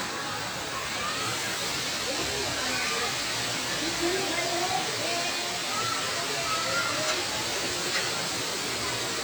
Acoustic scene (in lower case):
park